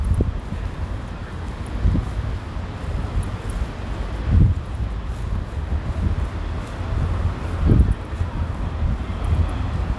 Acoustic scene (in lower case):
residential area